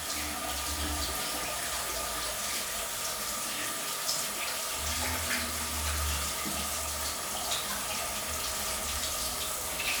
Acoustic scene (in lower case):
restroom